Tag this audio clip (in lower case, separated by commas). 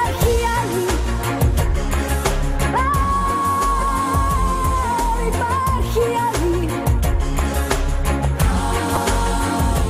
pop music, music